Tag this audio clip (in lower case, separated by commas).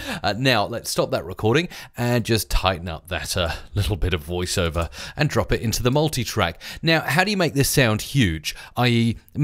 speech